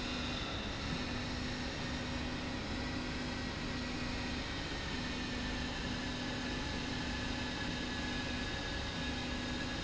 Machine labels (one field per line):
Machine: slide rail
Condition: normal